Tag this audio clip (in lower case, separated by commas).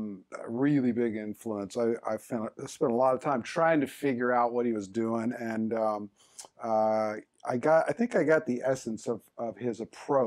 speech